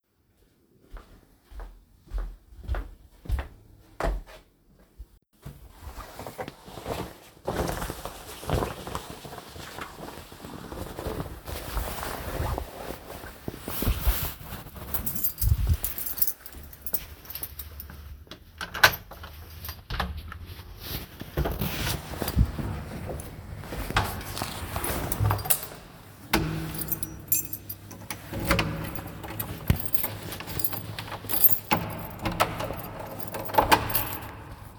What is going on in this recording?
I walk to the door, take my coat, put the coat on, pick my keys up, unlock and open the door, exit the house, close the door and lock the door from the outside while you can also hear the keys rustling in my hand as I turn the lock mechanism.